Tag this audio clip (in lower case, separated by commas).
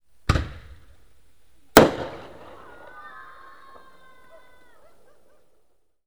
explosion, fireworks